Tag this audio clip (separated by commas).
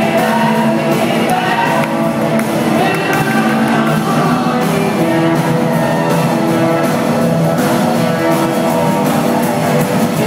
Music, Rock and roll